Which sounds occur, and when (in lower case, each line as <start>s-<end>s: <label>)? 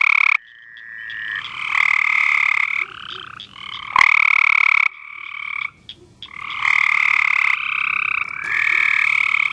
0.0s-5.7s: croak
0.3s-1.4s: background noise
2.7s-2.9s: bark
2.9s-3.9s: background noise
3.1s-3.2s: bark
4.9s-6.5s: background noise
5.8s-5.9s: croak
6.0s-6.0s: bark
6.2s-9.5s: croak
8.4s-8.5s: bark
8.7s-8.8s: bark